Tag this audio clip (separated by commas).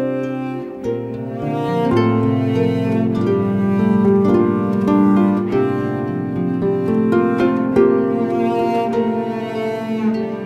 Music, Harp